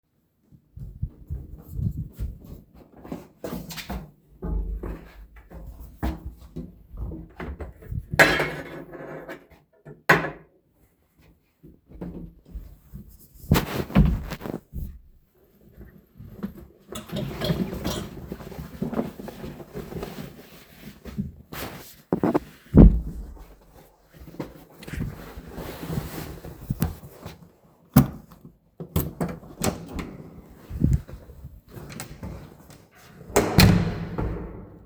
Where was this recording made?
living room, hallway